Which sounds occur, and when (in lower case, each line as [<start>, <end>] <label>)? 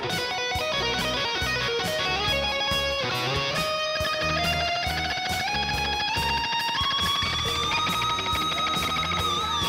[0.00, 9.65] music